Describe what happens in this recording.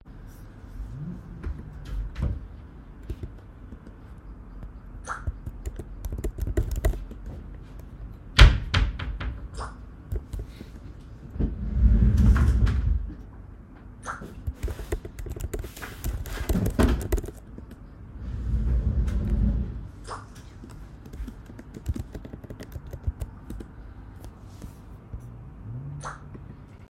I was typing on my laptop's keyboard. My opened the closet and received a phone message